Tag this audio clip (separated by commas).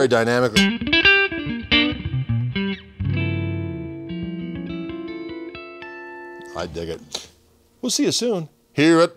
Guitar, Musical instrument, Music, Plucked string instrument, Electric guitar